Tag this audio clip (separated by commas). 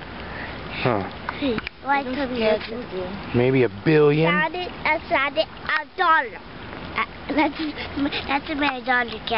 Child speech, Speech